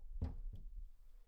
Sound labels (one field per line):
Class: cupboard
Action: closing